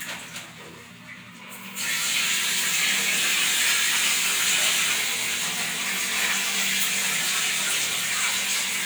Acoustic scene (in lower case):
restroom